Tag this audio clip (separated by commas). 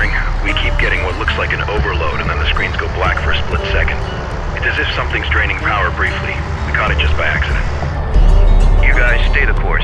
police radio chatter